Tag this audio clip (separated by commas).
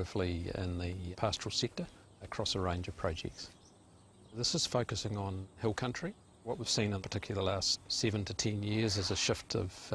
Speech